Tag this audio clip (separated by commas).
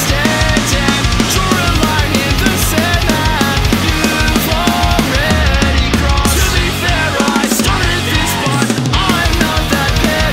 Pop music, Disco, Music, Jazz